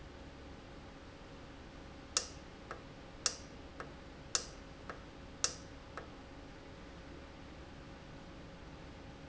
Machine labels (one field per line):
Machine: valve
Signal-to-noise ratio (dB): 6 dB